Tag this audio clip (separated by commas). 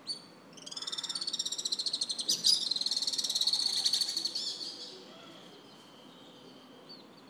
Wild animals, Bird, Animal